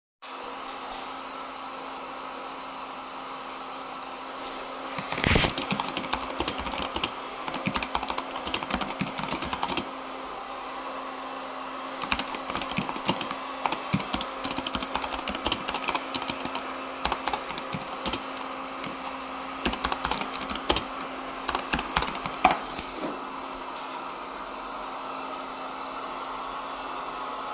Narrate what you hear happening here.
The vaccum cleaner was running while I was typing something on the PC.